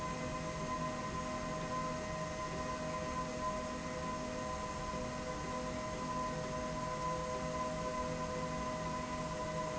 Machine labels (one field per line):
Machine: slide rail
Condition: normal